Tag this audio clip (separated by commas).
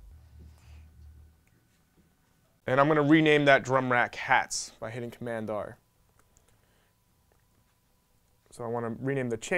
Speech